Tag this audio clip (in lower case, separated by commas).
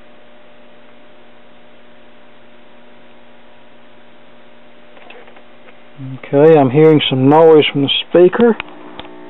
radio, speech